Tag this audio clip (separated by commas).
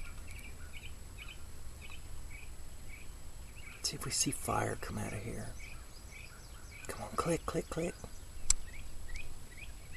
Speech, Bird vocalization, Environmental noise